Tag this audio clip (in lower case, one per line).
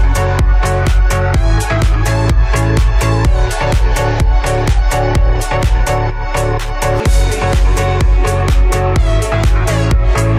music